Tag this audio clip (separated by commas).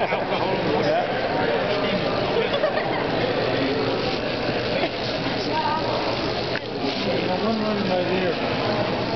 Speech